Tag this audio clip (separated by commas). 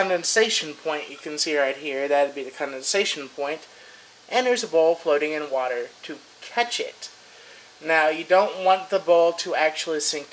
Speech